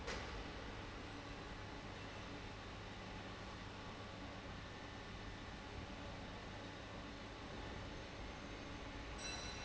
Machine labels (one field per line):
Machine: fan